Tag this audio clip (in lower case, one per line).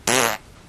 fart